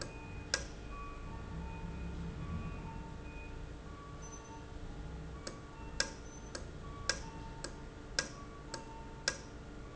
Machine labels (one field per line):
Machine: valve